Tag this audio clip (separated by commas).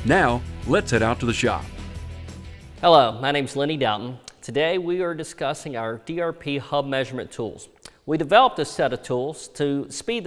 Speech, Music